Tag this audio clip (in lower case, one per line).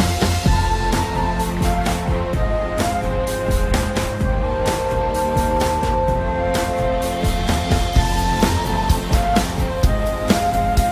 background music
music